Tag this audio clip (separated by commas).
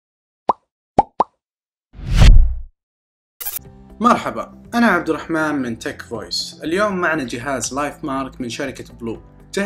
Plop, Speech, Music